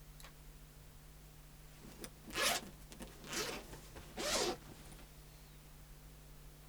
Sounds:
zipper (clothing), home sounds

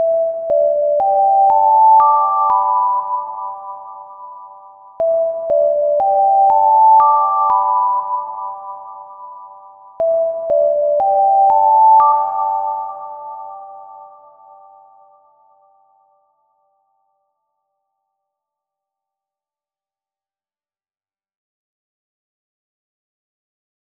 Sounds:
alarm

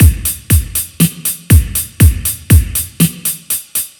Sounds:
drum kit, percussion, musical instrument, music

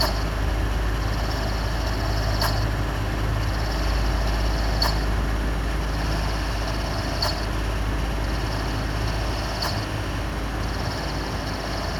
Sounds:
mechanical fan, mechanisms

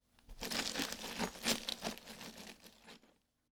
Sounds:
glass

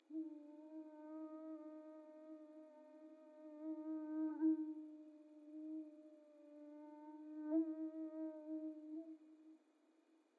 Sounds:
wild animals, animal, insect, buzz

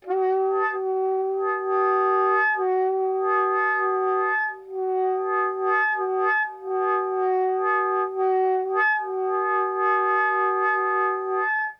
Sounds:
wind instrument, musical instrument, music

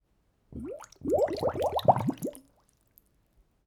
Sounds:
liquid

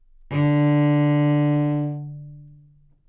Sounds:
music, musical instrument, bowed string instrument

